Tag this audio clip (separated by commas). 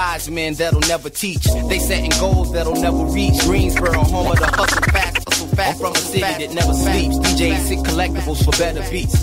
Hip hop music, Music